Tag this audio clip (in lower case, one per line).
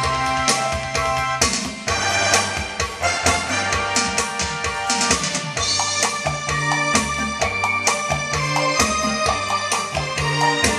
music